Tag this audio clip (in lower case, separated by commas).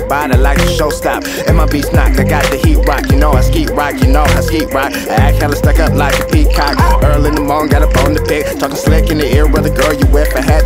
music, dance music